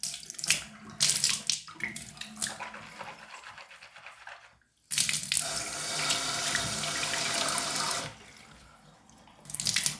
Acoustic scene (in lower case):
restroom